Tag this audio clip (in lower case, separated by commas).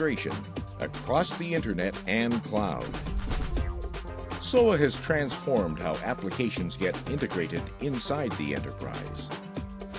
speech, music